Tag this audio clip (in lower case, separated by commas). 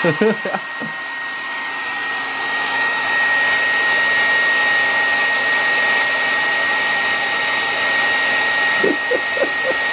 hair dryer